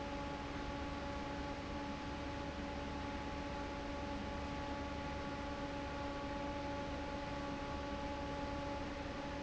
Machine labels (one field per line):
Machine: fan